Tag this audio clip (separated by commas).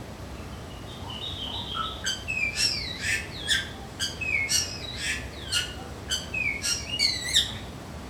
Wild animals, Animal, Bird